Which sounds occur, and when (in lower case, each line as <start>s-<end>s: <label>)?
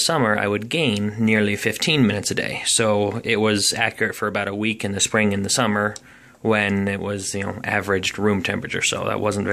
0.0s-1.0s: man speaking
0.0s-9.5s: background noise
0.6s-0.6s: tick
0.9s-1.0s: tick
1.0s-1.2s: human voice
1.2s-5.9s: man speaking
3.8s-3.9s: tick
5.4s-5.5s: generic impact sounds
5.9s-6.0s: tick
6.0s-6.4s: breathing
6.4s-9.5s: man speaking
6.7s-6.7s: tick
7.4s-7.5s: generic impact sounds